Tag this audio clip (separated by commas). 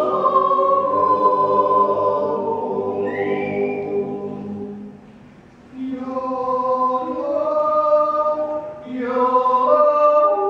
yodelling